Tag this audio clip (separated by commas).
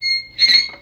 Squeak